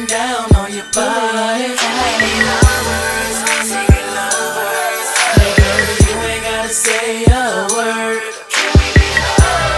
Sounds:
music

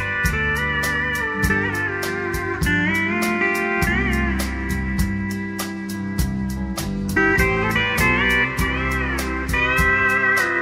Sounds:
music
steel guitar

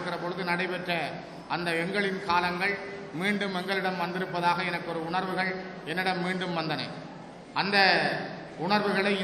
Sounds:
man speaking
speech
narration

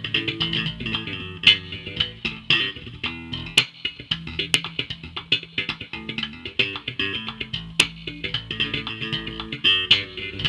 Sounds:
musical instrument
guitar
music
plucked string instrument

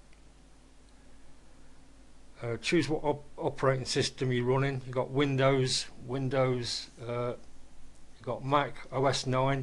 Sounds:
speech

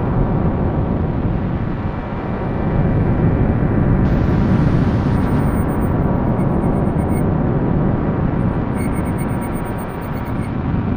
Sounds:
white noise

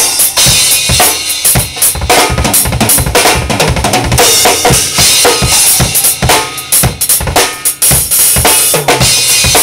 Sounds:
drum
drum kit
music
musical instrument

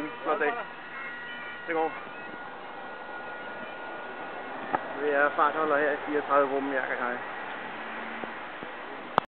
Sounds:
outside, rural or natural
speech

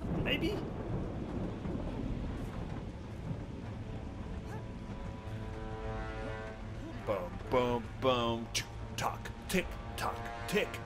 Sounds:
music
speech

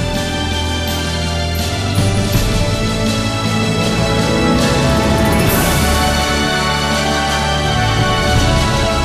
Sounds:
music

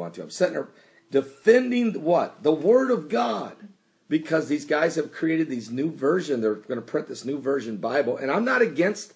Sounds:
speech
inside a small room

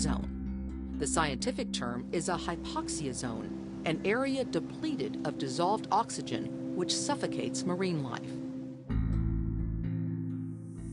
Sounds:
speech
music

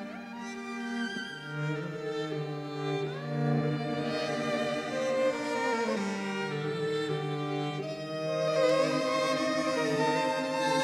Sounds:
music

